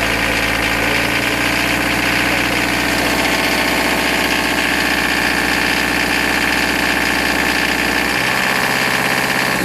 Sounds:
vibration

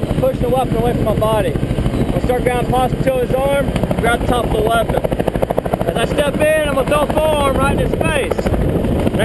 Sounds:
helicopter

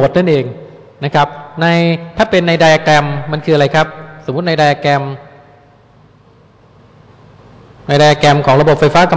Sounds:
speech

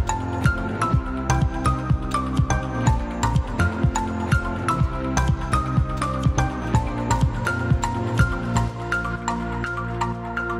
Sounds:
music

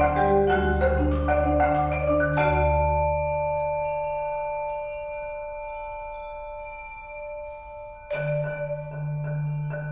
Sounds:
mallet percussion, xylophone, glockenspiel, playing marimba

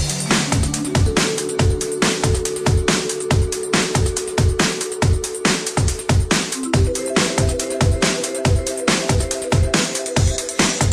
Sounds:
music

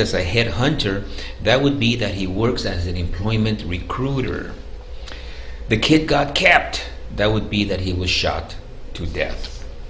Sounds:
speech, inside a small room

